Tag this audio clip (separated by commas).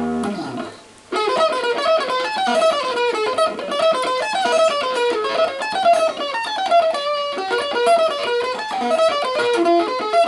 Music, Musical instrument, Plucked string instrument, Guitar, Electric guitar